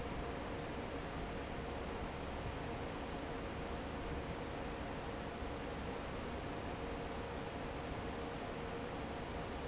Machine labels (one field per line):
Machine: fan